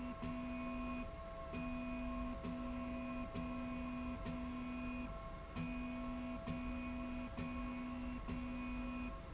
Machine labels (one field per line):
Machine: slide rail